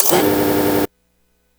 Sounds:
Mechanisms

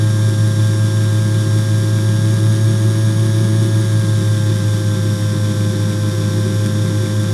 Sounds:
Tools

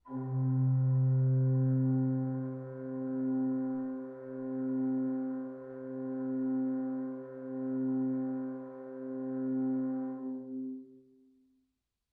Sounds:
Musical instrument, Keyboard (musical), Music, Organ

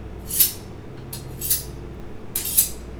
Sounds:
Domestic sounds, Cutlery

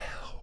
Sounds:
Whispering, Human voice

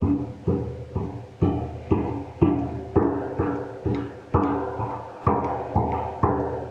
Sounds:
footsteps

